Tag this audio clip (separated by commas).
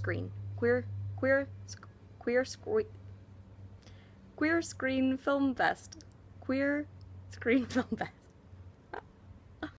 Speech